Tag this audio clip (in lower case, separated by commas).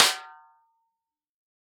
percussion, snare drum, music, drum, musical instrument